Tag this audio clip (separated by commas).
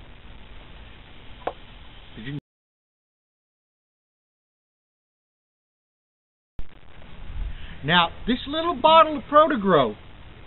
Speech